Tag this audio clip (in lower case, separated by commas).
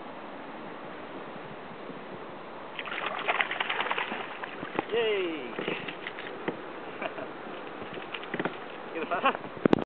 water vehicle, speech